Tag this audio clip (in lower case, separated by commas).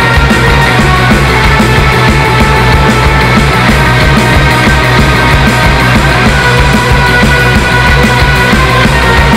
music